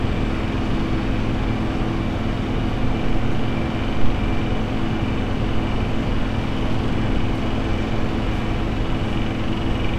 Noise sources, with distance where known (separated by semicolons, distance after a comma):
unidentified impact machinery, near